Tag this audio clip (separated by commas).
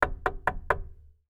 Knock, Wood, home sounds, Door